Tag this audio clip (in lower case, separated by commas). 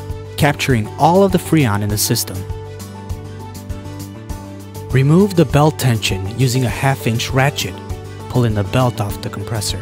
music, speech